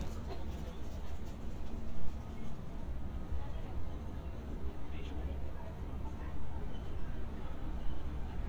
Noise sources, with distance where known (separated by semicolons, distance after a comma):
person or small group talking, far